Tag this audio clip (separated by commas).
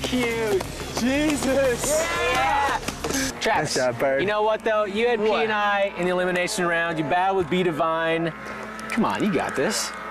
Music, Speech